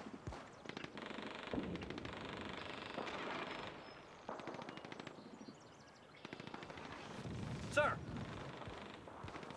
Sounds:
speech

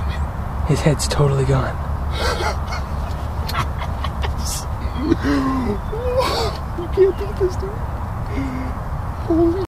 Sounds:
speech

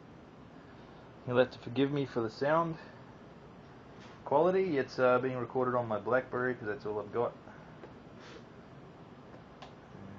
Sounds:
speech

